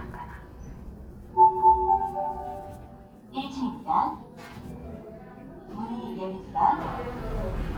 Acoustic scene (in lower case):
elevator